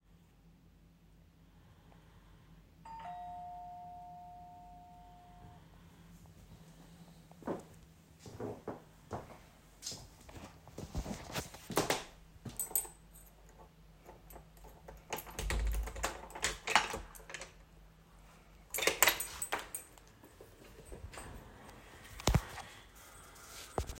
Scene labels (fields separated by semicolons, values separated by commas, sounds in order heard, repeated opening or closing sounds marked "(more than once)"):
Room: living room; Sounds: bell ringing, footsteps, door, keys